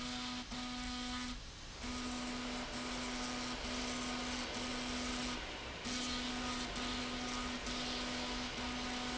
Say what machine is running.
slide rail